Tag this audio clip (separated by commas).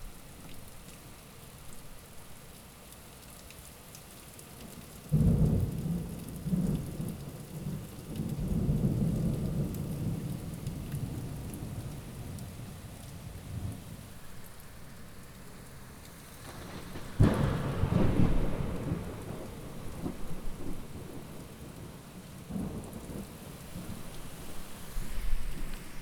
Thunderstorm, Rain, Water